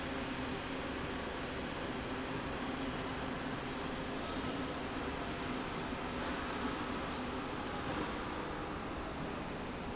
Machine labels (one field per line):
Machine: slide rail